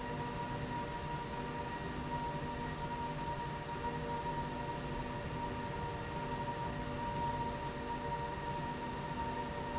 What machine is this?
slide rail